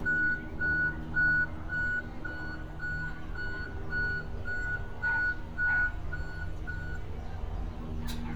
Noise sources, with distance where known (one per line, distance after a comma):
reverse beeper, near